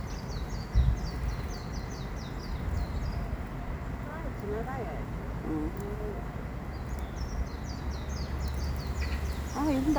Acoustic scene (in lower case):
park